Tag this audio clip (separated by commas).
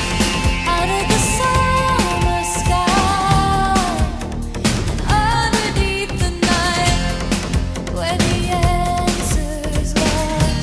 Music